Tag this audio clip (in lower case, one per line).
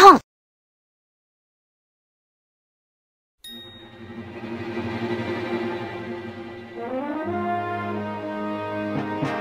music